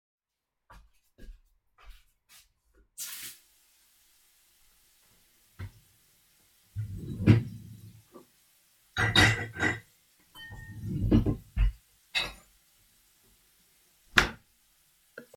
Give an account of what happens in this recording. I entered the kitchen and turned on the water. I opened the dishwasher and placed dishes into the machine and closed the dishwasher.